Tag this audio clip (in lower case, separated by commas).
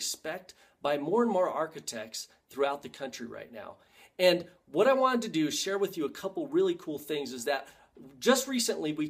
speech